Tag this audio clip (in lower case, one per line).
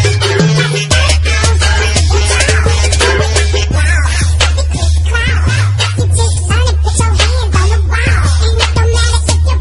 music